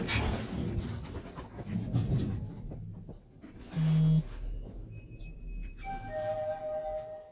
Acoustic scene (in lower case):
elevator